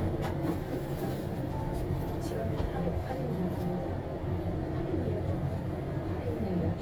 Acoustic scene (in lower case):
elevator